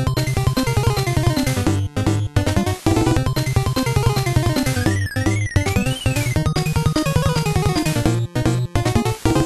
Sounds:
music

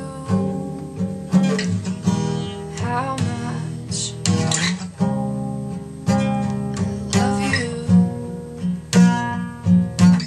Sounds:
music

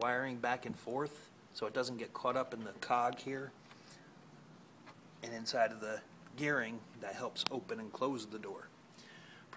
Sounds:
speech

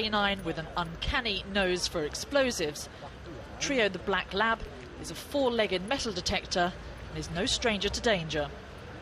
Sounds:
speech

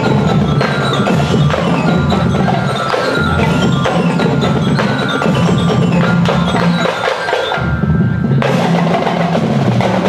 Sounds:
marimba
mallet percussion
glockenspiel

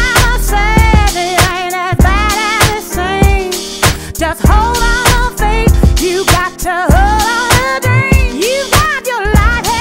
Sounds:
music

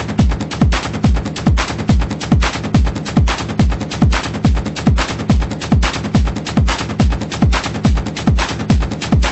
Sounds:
electronic music
techno
music

